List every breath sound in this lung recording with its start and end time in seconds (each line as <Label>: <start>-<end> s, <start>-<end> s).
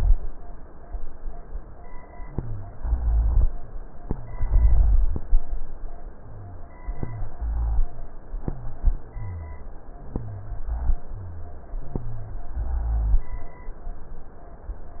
Wheeze: 6.24-6.81 s
Rhonchi: 2.24-3.47 s, 6.89-7.95 s, 8.60-9.66 s, 9.98-11.04 s, 11.14-12.45 s, 12.54-13.32 s